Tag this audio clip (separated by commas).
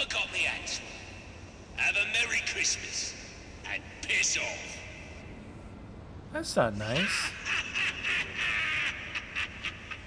Speech